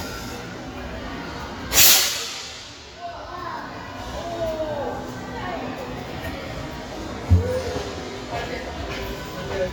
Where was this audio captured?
in a crowded indoor space